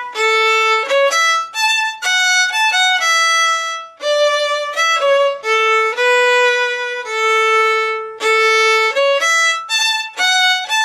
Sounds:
fiddle, music, musical instrument

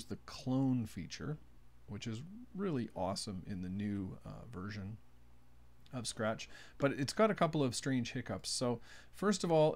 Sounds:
speech

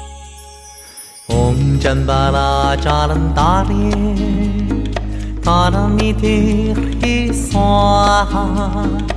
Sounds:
music

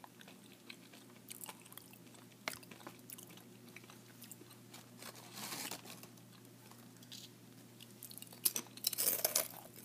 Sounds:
crunch

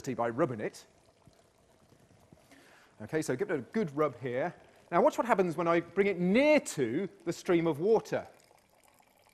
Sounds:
speech

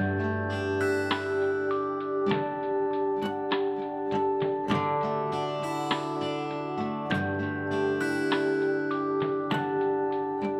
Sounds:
music, acoustic guitar

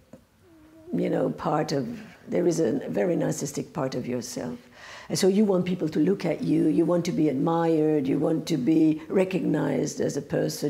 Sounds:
speech

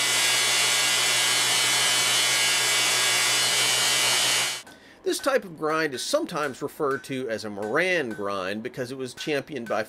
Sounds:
power tool, tools

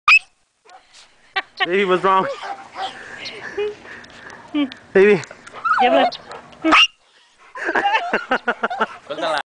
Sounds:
speech, dog, pets, animal, bark

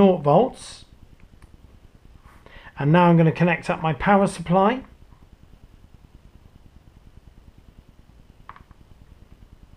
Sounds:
speech

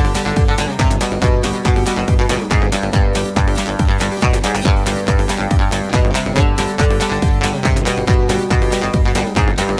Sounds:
jingle (music), music, rhythm and blues, blues

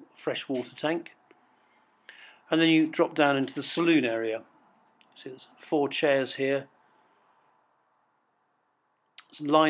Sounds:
speech

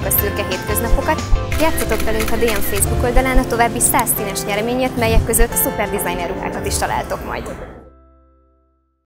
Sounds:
music, speech

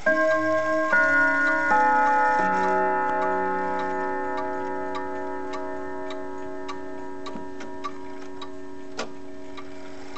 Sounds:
tick-tock

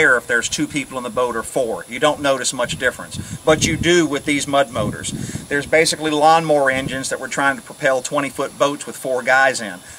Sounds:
speech

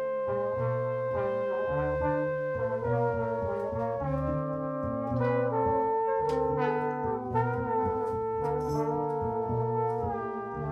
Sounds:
trombone, trumpet, jazz, orchestra, musical instrument, brass instrument, music, drum

